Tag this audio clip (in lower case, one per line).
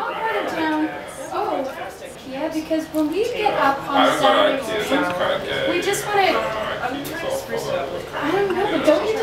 speech